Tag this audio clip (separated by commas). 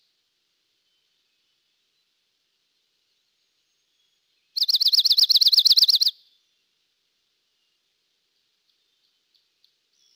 bird chirping